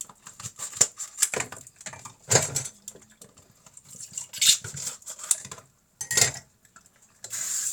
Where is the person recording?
in a kitchen